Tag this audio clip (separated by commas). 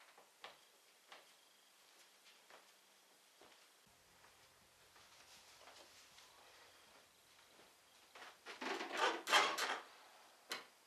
inside a small room, Silence